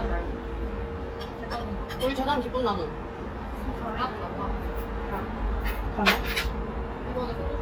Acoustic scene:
restaurant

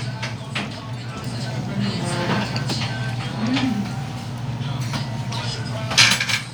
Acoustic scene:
restaurant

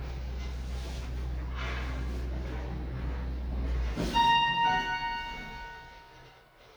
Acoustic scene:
elevator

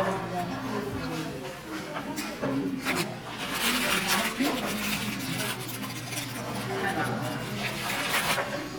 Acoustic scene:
crowded indoor space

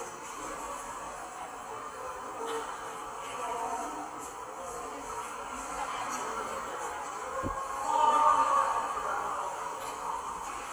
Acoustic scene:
subway station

